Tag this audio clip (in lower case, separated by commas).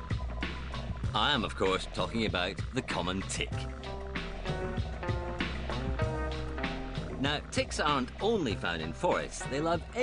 speech, music